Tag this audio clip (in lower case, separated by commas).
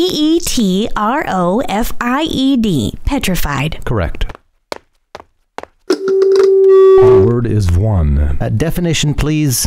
speech